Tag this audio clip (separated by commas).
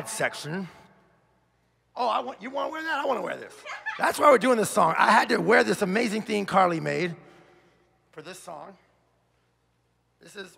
Speech